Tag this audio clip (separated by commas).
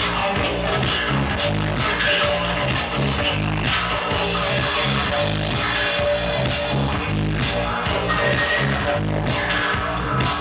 Electronic music, Techno, Electronic dance music, Trance music, Music, Dance music, Singing, Dubstep, Didgeridoo, Electronica